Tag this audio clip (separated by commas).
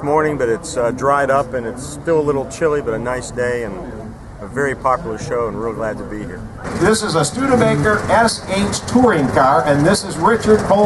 Speech, Vehicle